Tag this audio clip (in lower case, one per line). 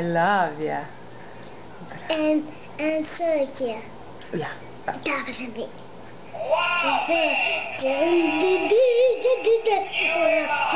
speech